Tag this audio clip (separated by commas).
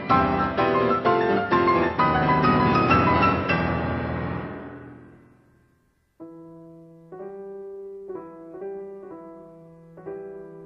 Piano